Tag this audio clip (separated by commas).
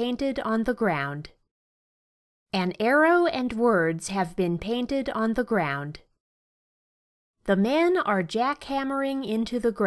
Speech